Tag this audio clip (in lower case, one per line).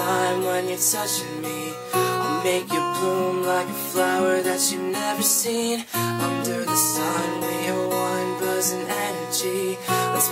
music